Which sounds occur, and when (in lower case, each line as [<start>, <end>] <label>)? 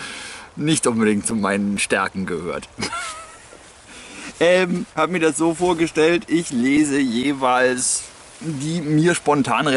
[0.01, 9.75] noise
[0.47, 2.57] man speaking
[2.64, 3.37] laughter
[4.34, 4.83] man speaking
[4.92, 8.01] man speaking
[8.40, 9.75] man speaking